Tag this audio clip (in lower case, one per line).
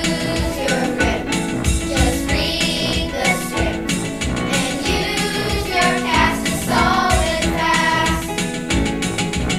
music
singing
choir